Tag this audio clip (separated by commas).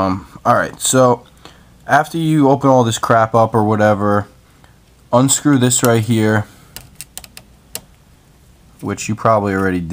Speech